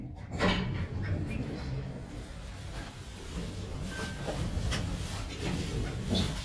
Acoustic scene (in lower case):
elevator